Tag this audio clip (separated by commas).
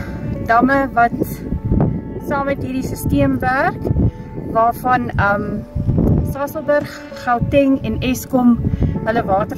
Speech, Music